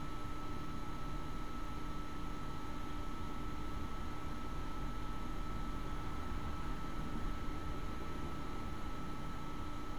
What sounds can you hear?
background noise